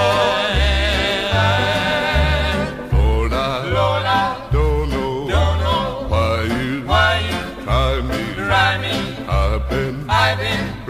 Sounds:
music

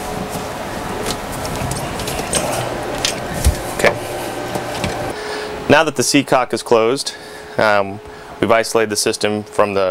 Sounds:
speech

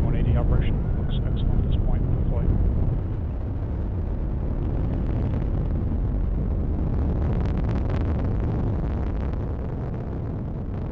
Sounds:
missile launch

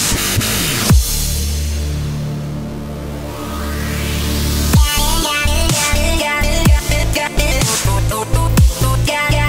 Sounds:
dubstep
music
electronic music

